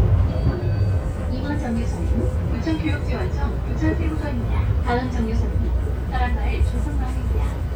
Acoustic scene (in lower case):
bus